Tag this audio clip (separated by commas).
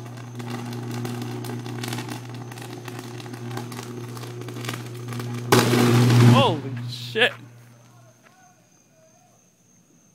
outside, urban or man-made, Speech